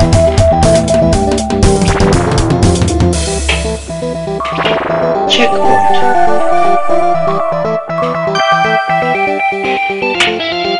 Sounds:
music, speech

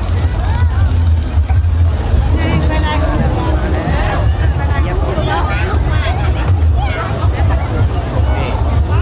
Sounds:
speech, vehicle, motorboat, boat

